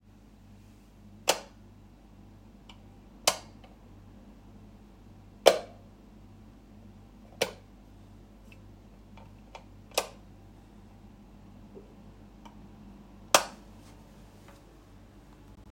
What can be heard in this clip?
footsteps, light switch